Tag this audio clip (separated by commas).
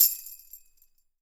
Tambourine, Percussion, Music, Musical instrument